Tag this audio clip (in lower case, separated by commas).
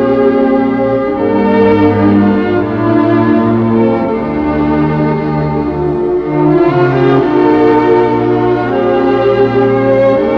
sad music, music